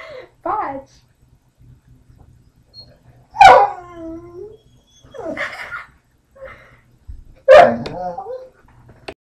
A girl speaks and laughs and a dog barks a long bark